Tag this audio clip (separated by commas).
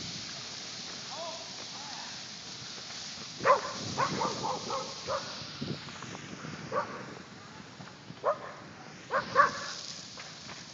Fire, Wind, Wind noise (microphone)